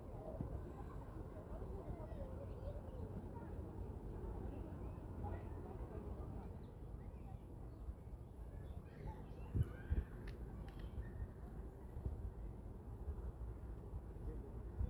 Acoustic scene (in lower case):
residential area